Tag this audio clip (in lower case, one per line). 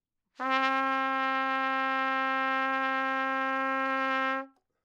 musical instrument
brass instrument
trumpet
music